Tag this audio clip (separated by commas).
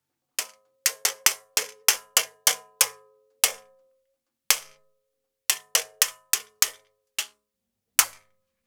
Tap